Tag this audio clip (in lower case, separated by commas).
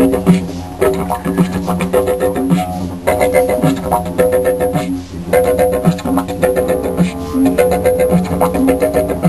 didgeridoo, music